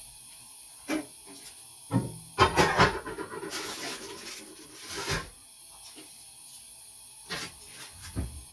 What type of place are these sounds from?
kitchen